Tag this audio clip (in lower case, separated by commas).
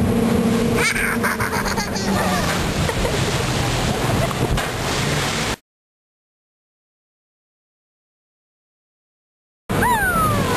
vehicle, boat, motorboat